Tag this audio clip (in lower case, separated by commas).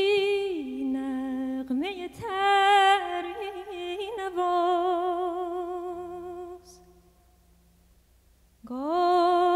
music